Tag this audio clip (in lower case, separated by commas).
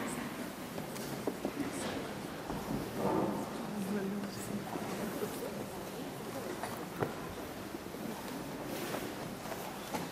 speech